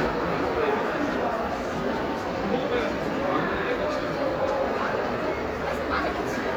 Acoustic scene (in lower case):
crowded indoor space